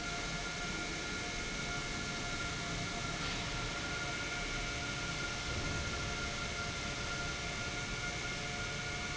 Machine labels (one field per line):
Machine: pump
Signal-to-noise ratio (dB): -6 dB